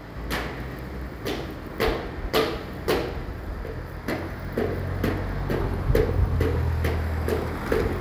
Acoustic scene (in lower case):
residential area